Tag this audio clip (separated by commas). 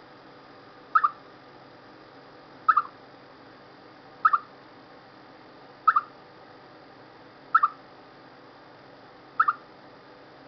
chipmunk chirping